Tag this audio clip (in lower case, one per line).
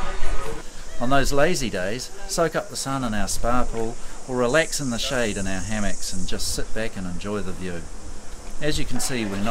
dishes, pots and pans
speech